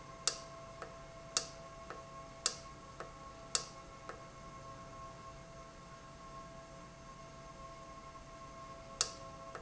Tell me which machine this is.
valve